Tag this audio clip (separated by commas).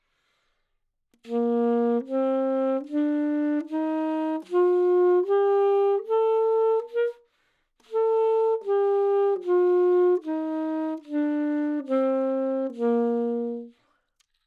Musical instrument, Music, Wind instrument